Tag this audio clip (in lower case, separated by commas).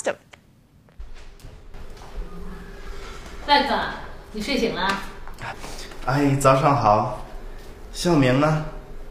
inside a small room, speech